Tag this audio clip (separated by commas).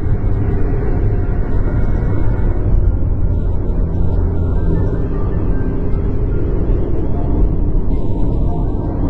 Motor vehicle (road), Vehicle, Music